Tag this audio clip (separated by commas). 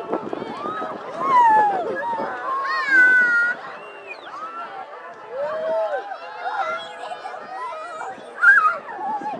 Water, Speech